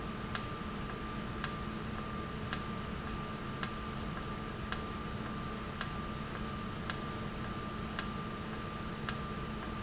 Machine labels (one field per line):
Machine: valve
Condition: normal